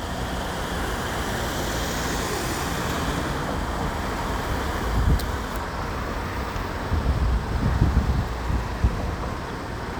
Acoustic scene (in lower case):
street